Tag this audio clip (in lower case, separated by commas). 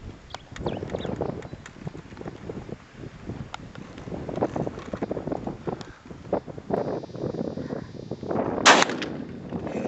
animal, outside, rural or natural